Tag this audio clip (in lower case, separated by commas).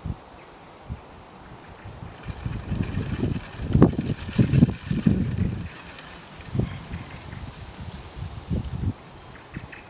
wind, wind noise (microphone)